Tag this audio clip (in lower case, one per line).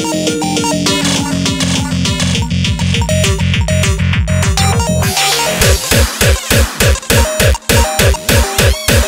cacophony